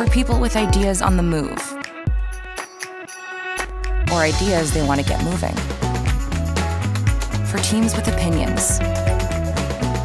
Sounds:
Music, Speech

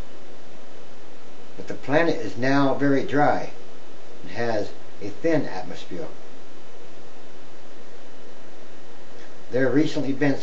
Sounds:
Speech

